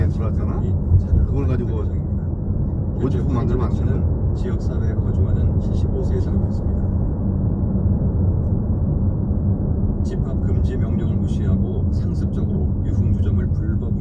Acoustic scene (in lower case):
car